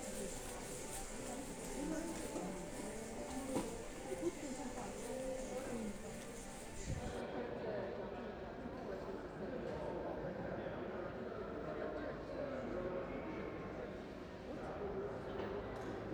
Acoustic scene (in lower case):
crowded indoor space